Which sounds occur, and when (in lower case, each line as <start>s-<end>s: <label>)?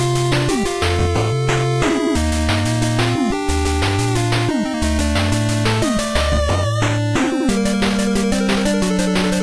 0.0s-9.4s: music